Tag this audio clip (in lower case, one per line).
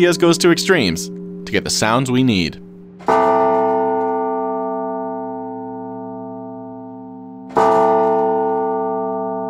reverberation
bell
speech